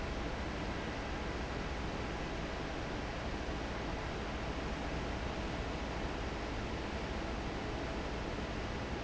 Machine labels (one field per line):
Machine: fan